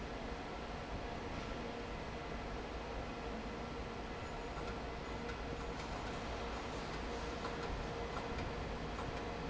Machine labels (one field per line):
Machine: fan